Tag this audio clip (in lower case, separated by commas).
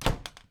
domestic sounds, door